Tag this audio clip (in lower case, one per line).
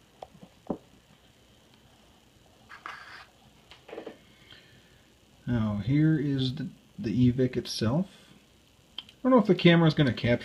speech
inside a small room